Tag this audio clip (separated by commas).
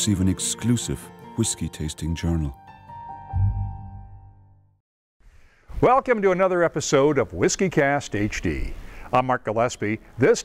Music, Speech